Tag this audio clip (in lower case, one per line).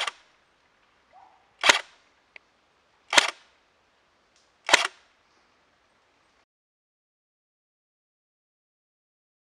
gunshot